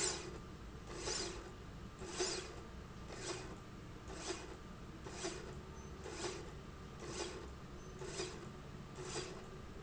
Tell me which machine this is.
slide rail